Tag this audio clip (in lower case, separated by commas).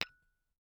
glass, tap